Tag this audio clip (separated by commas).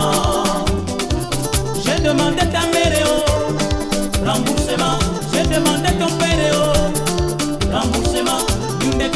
Music of Africa, Music